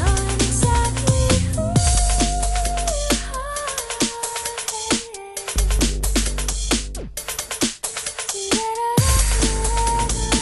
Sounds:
music, drum and bass, singing

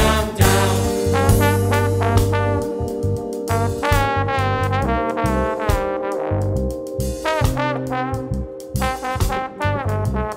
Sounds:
music

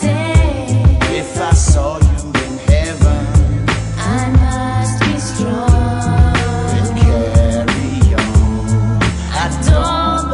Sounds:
music, soul music

